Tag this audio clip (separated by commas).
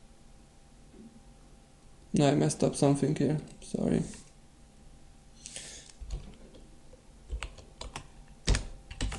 Speech, Typewriter